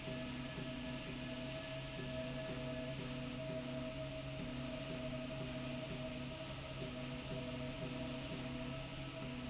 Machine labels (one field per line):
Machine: slide rail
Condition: normal